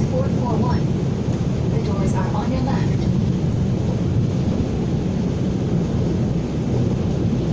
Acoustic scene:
subway train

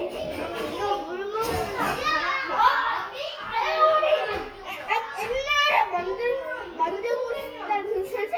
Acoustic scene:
crowded indoor space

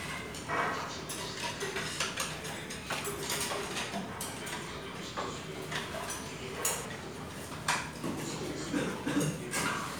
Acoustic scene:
restaurant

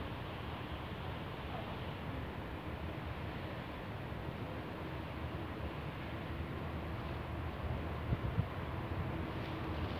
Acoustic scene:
residential area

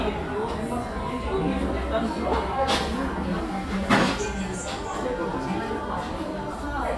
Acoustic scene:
cafe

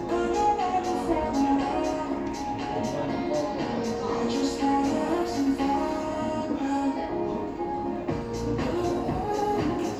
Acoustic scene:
cafe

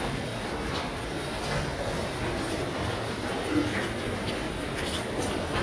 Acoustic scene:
subway station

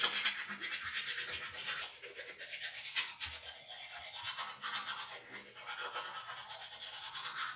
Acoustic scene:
restroom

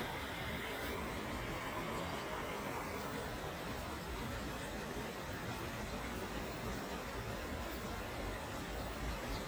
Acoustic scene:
park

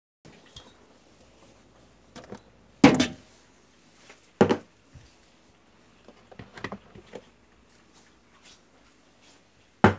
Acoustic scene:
kitchen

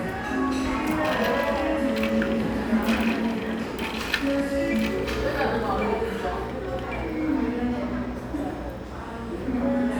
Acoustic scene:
cafe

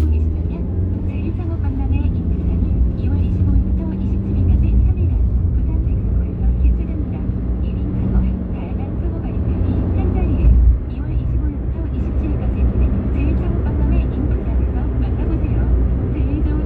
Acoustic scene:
car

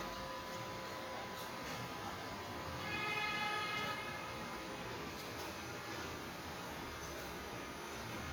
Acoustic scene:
residential area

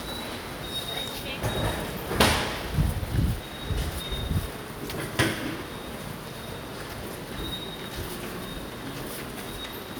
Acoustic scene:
subway station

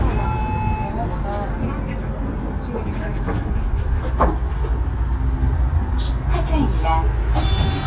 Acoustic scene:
bus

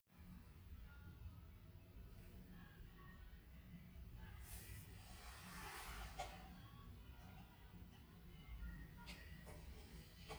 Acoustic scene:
elevator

